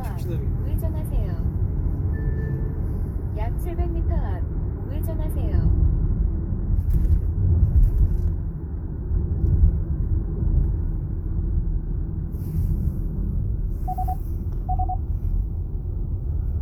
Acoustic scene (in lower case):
car